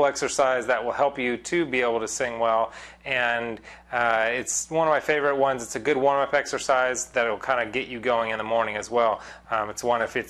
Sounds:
Speech

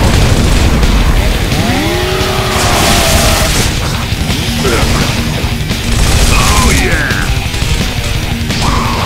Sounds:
Speech, Music

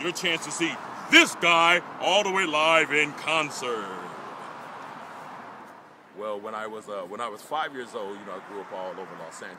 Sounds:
Speech

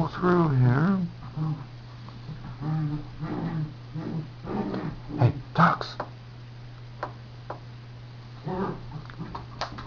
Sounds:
Speech

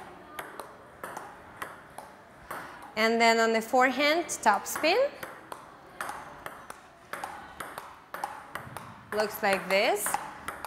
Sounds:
playing table tennis

